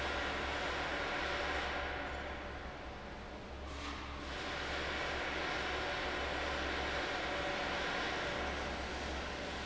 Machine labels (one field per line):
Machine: fan